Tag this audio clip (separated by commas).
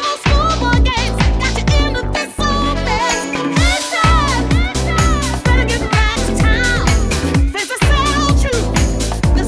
Disco